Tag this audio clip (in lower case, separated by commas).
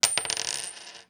coin (dropping), home sounds